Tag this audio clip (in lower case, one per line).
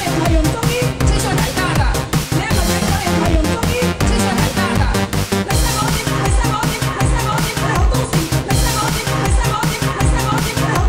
techno
music